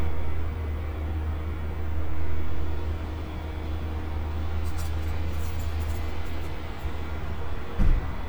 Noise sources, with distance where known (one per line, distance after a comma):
engine of unclear size